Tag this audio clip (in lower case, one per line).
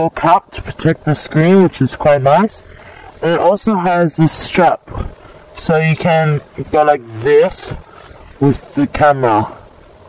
speech